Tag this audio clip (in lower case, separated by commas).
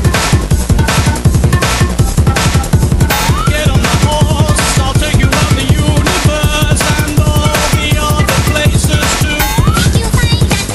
music, drum kit, bass drum, musical instrument, drum